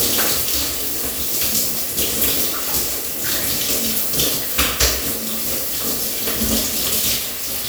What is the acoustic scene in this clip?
restroom